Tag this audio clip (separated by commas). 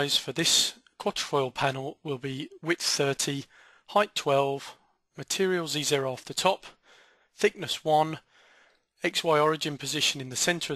Speech